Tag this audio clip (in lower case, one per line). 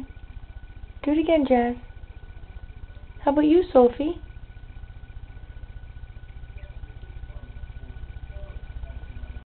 speech